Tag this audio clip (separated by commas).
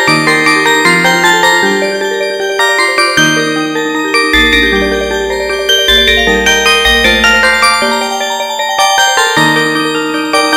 Glockenspiel, Mallet percussion, Marimba